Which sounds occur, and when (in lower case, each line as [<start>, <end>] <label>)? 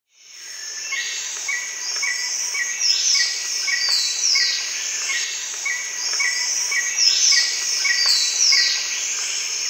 [0.04, 9.65] bird call
[0.06, 9.65] mechanisms
[1.30, 1.43] generic impact sounds
[1.84, 2.10] generic impact sounds
[3.39, 3.50] generic impact sounds
[3.83, 3.91] generic impact sounds
[4.53, 4.61] generic impact sounds
[4.96, 5.04] generic impact sounds
[5.50, 5.57] generic impact sounds
[6.07, 6.14] generic impact sounds
[7.56, 7.64] generic impact sounds
[8.00, 8.07] generic impact sounds
[9.12, 9.25] generic impact sounds